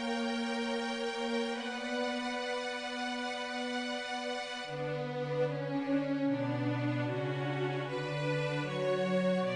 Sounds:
music, tender music, soul music

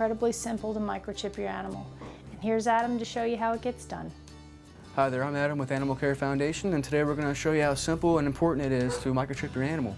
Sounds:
music, speech

